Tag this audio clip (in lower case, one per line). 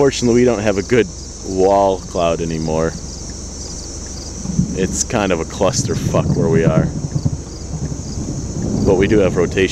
wind noise (microphone)
wind